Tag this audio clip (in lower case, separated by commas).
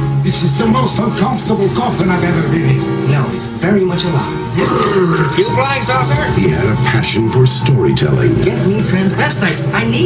music, speech